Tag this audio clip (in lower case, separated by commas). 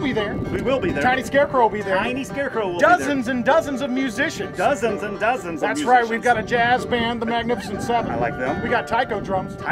music, speech